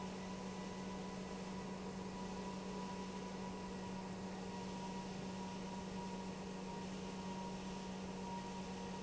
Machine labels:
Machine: pump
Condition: normal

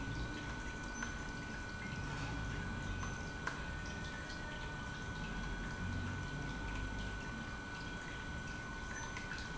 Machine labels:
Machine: pump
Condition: normal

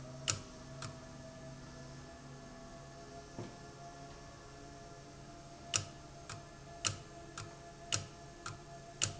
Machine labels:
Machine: valve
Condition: abnormal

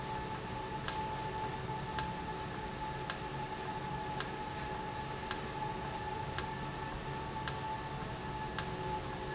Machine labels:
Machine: valve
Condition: normal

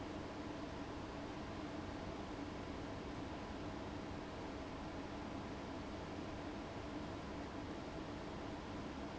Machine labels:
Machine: fan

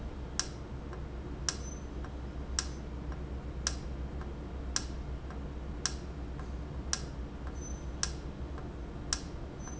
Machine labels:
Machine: valve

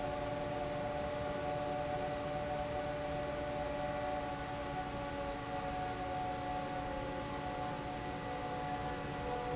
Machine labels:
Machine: fan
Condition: normal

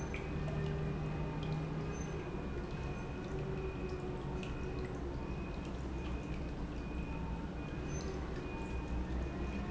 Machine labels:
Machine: pump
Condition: normal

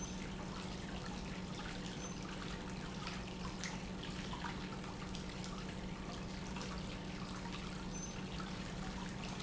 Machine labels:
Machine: pump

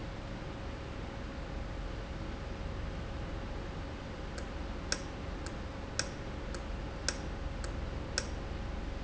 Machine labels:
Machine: valve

